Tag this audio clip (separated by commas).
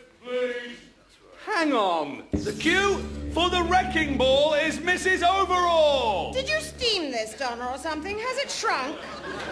Speech, Sound effect